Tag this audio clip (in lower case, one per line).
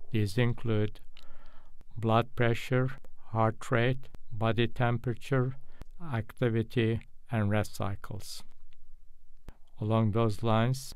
speech